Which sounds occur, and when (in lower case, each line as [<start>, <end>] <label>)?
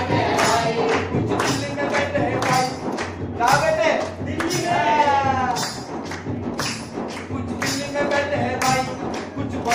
[0.00, 1.17] choir
[0.00, 9.74] crowd
[0.00, 9.74] music
[0.29, 0.45] clapping
[0.81, 0.97] clapping
[1.26, 1.48] clapping
[1.35, 2.87] male singing
[1.89, 2.00] clapping
[2.38, 2.63] clapping
[2.94, 3.08] clapping
[3.35, 3.62] clapping
[3.36, 4.13] male speech
[3.82, 4.02] clapping
[4.30, 5.53] choir
[4.36, 4.58] clapping
[5.55, 5.75] clapping
[6.04, 6.22] clapping
[6.49, 6.74] clapping
[6.99, 7.28] clapping
[7.33, 8.85] male singing
[7.51, 7.78] clapping
[8.54, 8.92] clapping
[9.28, 9.74] male singing